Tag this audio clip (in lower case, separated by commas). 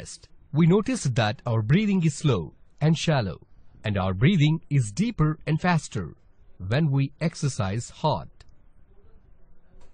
speech, speech synthesizer